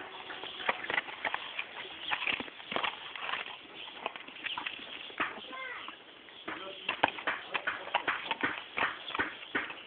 Clip clops from a horse, people speak